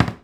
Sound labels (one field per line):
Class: cupboard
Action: closing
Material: wooden